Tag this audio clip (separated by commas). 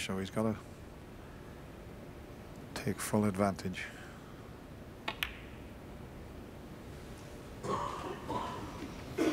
Speech